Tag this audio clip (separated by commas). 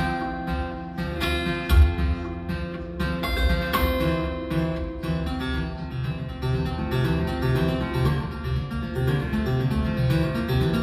Music, Flamenco